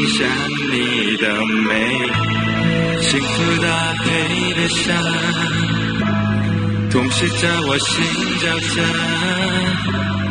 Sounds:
male singing
music

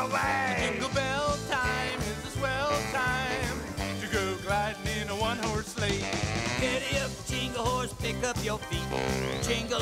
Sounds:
music

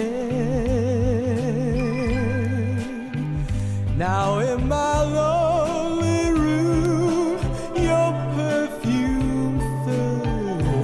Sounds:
male singing
music

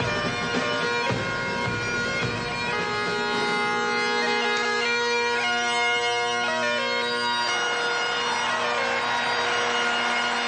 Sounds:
playing bagpipes

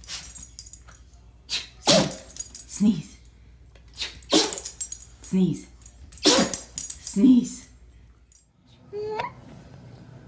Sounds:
people sneezing

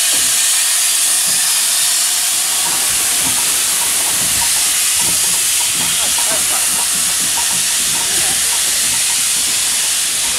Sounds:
jet engine
speech
engine

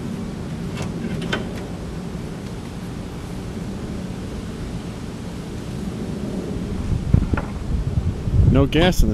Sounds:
speech

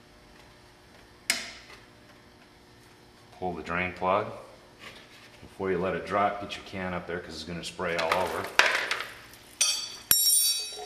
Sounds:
speech

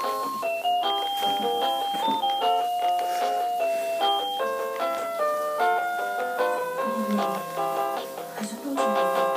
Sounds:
piano
musical instrument
music
speech
keyboard (musical)

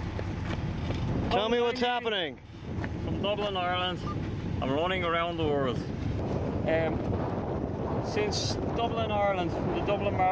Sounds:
outside, rural or natural
speech

